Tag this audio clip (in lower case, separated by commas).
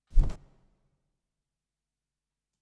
animal, wild animals, bird